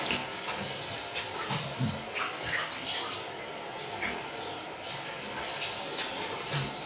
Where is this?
in a restroom